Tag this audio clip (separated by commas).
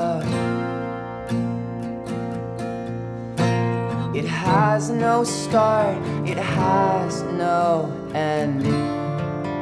Music